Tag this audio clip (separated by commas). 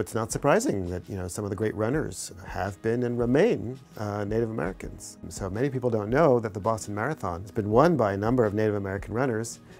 Music, Speech, inside a small room